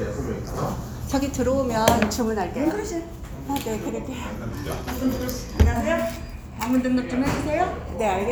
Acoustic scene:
restaurant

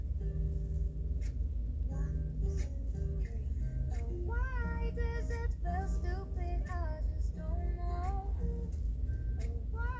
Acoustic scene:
car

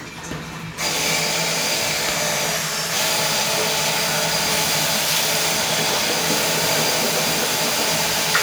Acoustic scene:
restroom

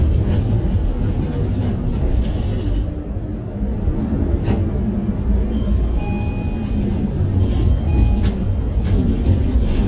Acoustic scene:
bus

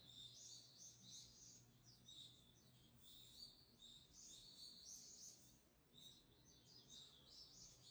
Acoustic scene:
park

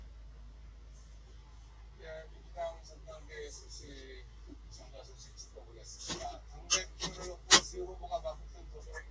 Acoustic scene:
car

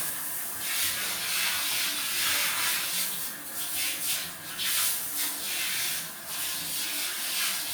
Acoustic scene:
restroom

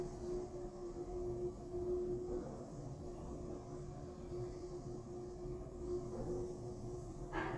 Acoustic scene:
elevator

